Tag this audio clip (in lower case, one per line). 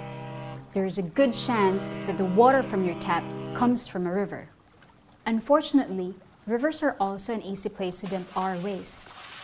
speech